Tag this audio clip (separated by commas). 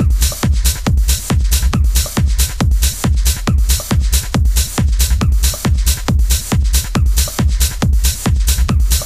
Techno, Electronic music, Music